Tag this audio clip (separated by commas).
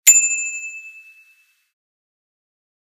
Bell, Bicycle, Vehicle, Bicycle bell, Alarm